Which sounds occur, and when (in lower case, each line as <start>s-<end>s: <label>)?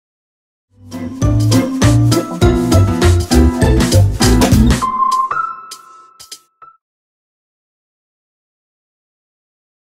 0.6s-6.8s: music